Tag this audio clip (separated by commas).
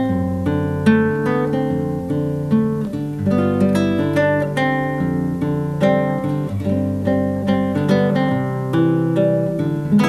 Acoustic guitar, Guitar, Musical instrument, Plucked string instrument, Music